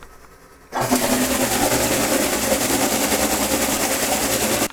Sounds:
Engine, Engine starting

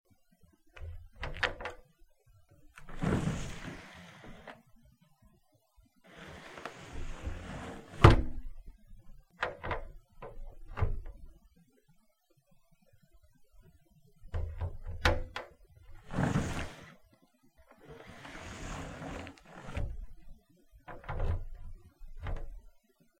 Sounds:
Domestic sounds, Drawer open or close

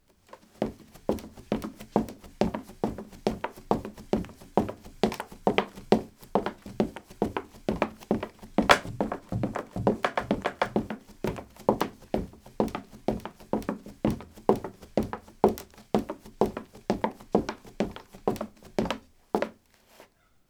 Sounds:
Run

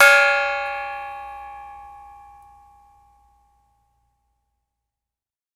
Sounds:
Musical instrument, Music, Percussion, Gong

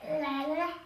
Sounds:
Human voice, Speech

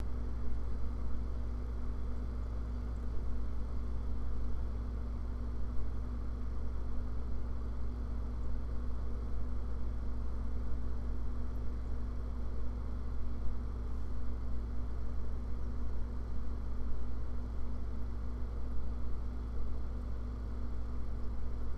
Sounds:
Engine

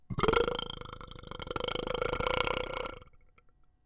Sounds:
eructation

